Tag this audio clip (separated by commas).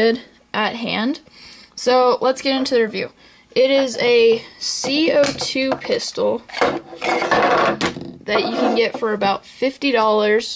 inside a small room, Speech